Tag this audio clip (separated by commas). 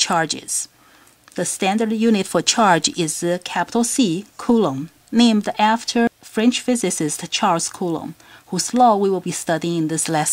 Speech